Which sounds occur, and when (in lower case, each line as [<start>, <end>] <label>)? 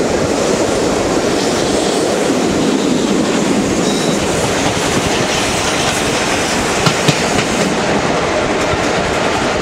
[0.00, 9.61] train
[0.00, 9.61] wind
[1.27, 1.59] clickety-clack
[3.20, 3.58] clickety-clack
[3.80, 4.25] train wheels squealing
[4.48, 5.54] clickety-clack
[5.65, 6.00] clickety-clack
[6.23, 6.59] clickety-clack
[6.78, 6.93] clickety-clack
[7.02, 7.13] clickety-clack
[7.28, 7.47] clickety-clack
[7.55, 7.71] clickety-clack
[8.55, 8.69] clickety-clack
[8.83, 8.96] clickety-clack